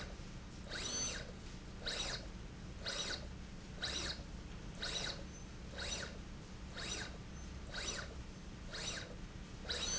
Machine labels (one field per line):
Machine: slide rail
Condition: abnormal